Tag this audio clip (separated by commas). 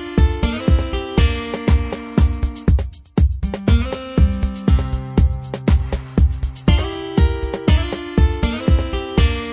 Electronica, Music